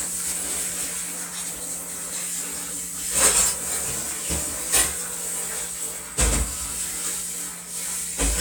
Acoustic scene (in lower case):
kitchen